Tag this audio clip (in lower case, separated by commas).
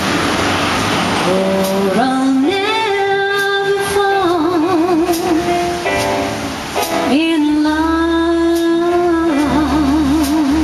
music, rustle